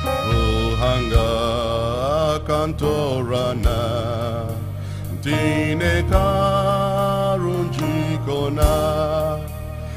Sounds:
gospel music, music

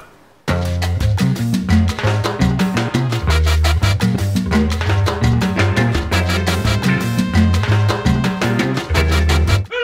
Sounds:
music

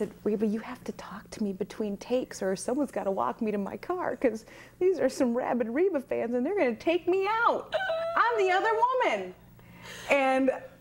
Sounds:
speech, female speech

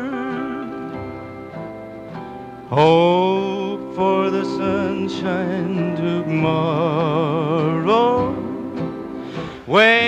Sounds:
music

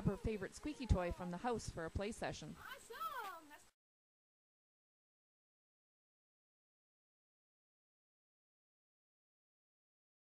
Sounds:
speech

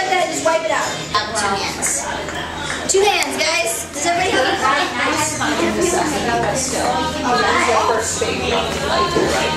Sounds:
speech

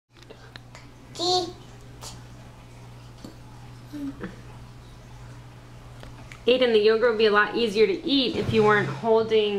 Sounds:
speech

